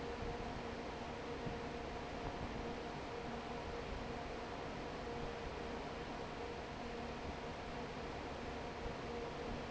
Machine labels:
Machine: fan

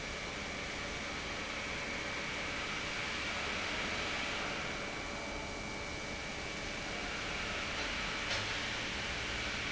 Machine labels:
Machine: pump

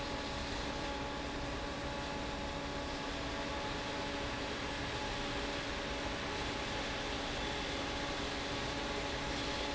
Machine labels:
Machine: fan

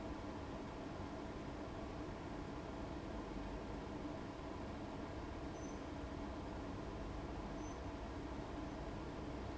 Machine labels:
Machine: fan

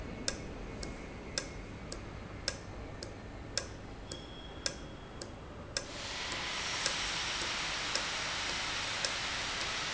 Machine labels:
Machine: valve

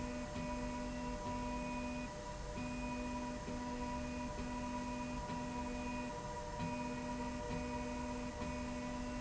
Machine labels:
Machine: slide rail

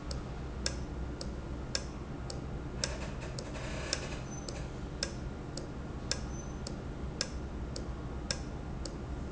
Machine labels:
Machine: valve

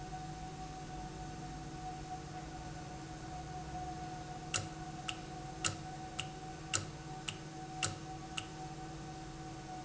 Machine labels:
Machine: valve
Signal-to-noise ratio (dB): 0 dB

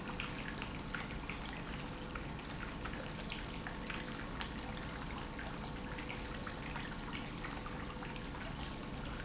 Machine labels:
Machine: pump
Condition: normal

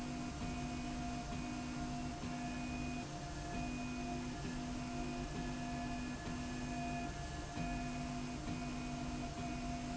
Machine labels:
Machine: slide rail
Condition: normal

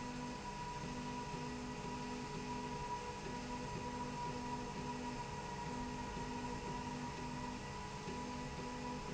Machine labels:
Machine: slide rail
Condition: normal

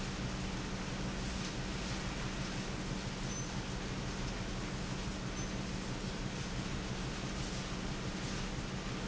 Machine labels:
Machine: pump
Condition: normal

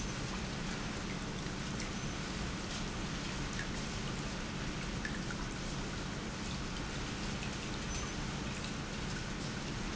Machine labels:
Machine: pump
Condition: normal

